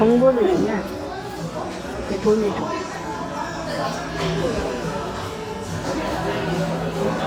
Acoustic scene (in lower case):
cafe